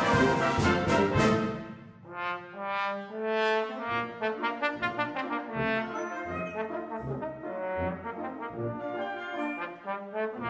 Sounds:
Trombone, Trumpet, playing trombone, Brass instrument

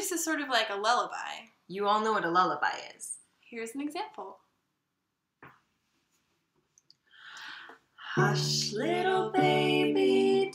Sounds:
Music, Speech, Lullaby

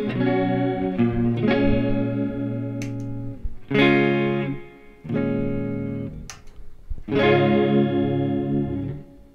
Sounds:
Guitar, Music

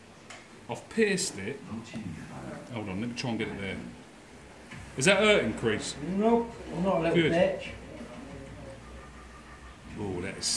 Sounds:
Speech

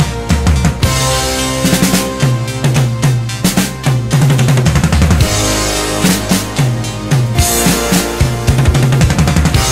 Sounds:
Music

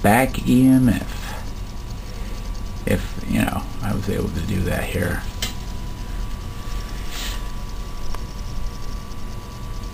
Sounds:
Speech

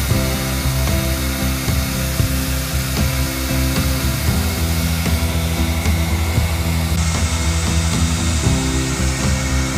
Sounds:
inside a small room, Music

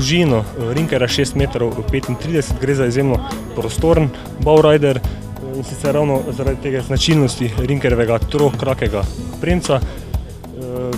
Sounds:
Music, Speech

